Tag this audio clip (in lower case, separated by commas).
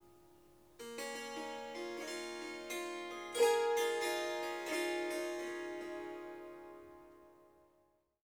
musical instrument, music, harp